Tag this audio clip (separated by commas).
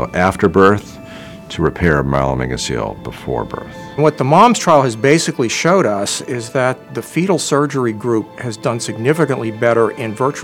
Speech, Music